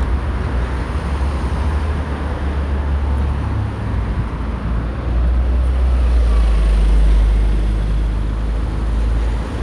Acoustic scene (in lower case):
street